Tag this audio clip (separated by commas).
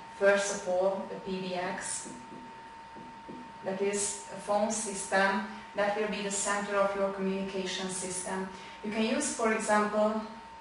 Speech